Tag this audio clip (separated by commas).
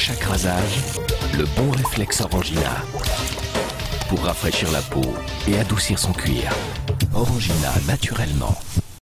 Music, Speech